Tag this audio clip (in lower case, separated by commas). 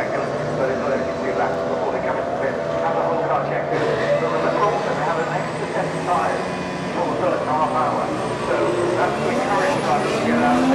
speech